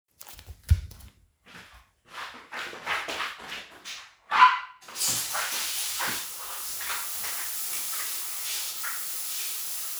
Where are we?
in a restroom